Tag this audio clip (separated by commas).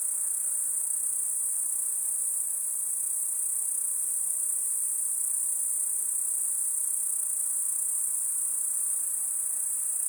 Wild animals, Animal, Insect, Cricket